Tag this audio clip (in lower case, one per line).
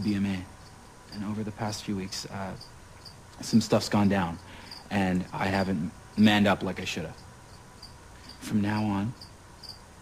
man speaking
speech